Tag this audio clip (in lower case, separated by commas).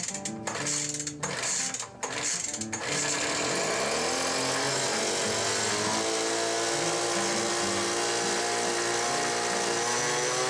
music, tools